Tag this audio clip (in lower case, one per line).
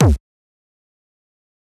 bass drum
musical instrument
drum
music
percussion